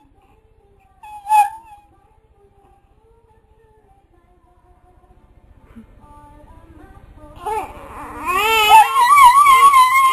A baby cries and an animal whines as music plays in the background